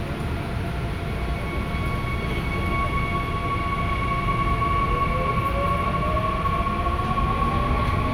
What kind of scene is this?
subway train